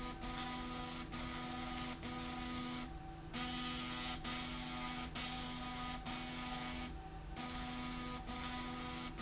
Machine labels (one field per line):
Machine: slide rail